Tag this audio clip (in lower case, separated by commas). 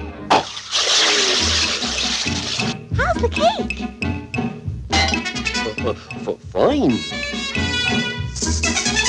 speech, music